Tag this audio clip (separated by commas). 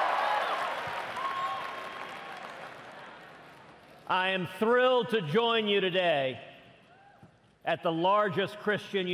monologue, Speech, man speaking